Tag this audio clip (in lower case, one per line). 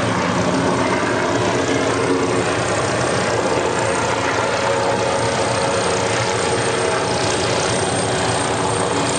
vehicle